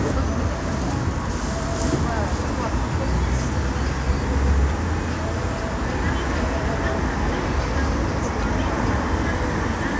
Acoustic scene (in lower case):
street